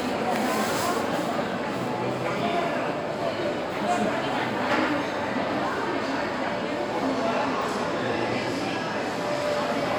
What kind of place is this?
restaurant